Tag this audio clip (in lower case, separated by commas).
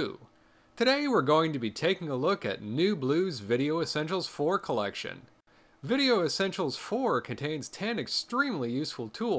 speech